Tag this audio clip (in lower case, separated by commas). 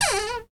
cupboard open or close, domestic sounds, door